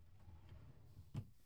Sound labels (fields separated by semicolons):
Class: drawer; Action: opening; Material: wooden